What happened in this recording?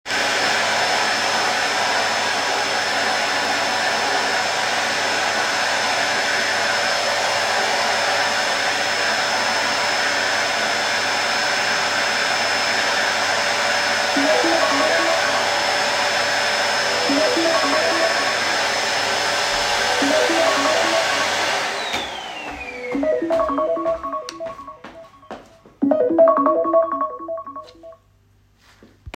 I turned on the vacuum cleaner and moved across the living room while vacuuming. While the vacuum cleaner was still running, my phone received a call and rang simultaneously. I then turned off the vacuum cleaner and walked away.